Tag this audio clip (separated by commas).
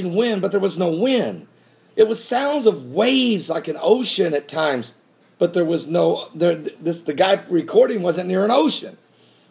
Speech